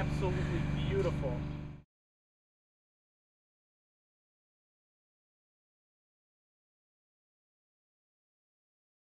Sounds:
speech

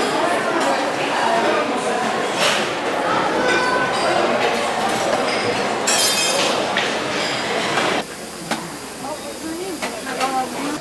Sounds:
speech

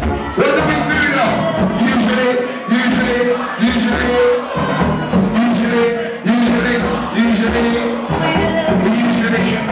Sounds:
speech, music

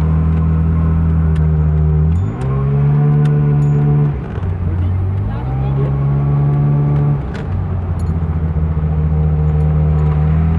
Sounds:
accelerating, engine, vehicle, car, speech

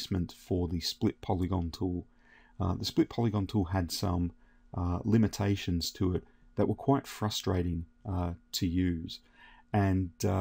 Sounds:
speech

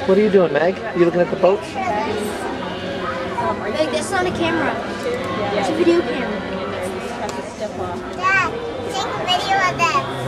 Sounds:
speech, music

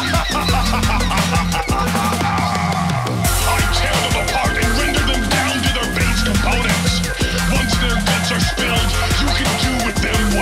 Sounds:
drum and bass, music, electronic music

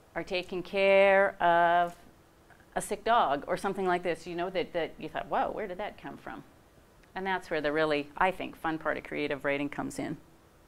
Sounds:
speech

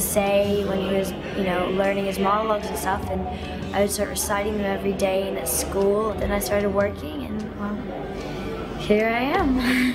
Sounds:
speech, music

